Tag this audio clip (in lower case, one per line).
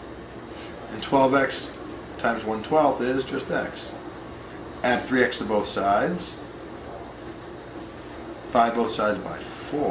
speech